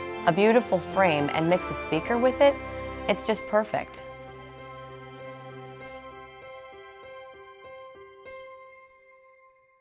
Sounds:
music, speech

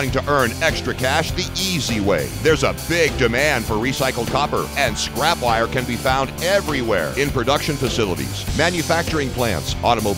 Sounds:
speech, music

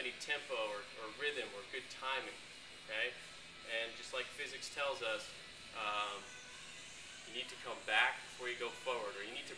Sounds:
music, speech

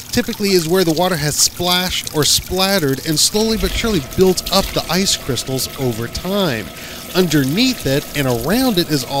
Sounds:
water, speech

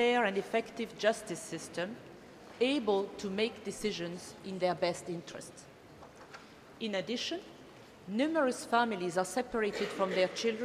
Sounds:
speech, monologue, female speech

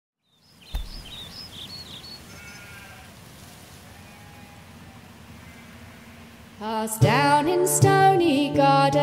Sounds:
environmental noise, singing, musical instrument, music

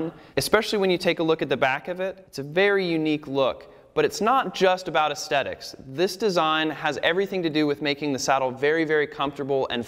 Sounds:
speech

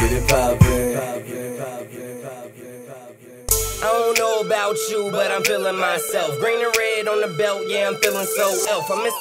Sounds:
music

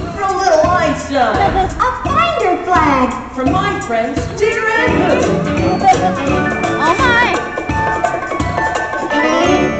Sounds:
speech, music

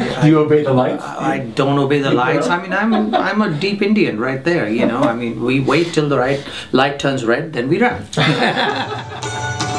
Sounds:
music, speech

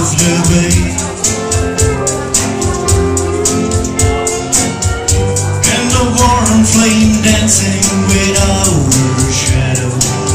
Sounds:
guitar, acoustic guitar, country, musical instrument, music, strum, plucked string instrument

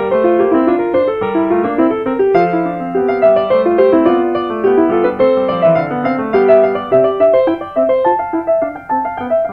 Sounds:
music

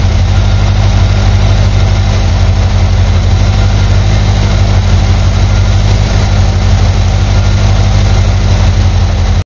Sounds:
engine, idling, car, vehicle

